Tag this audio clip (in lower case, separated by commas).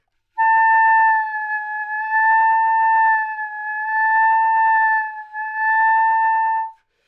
music, musical instrument, wind instrument